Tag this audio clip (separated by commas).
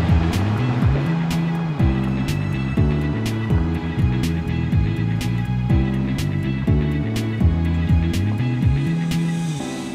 Music